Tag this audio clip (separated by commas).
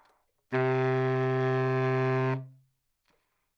Musical instrument, Music, Wind instrument